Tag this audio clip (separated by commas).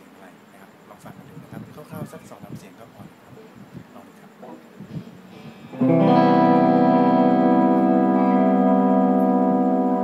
Music, Speech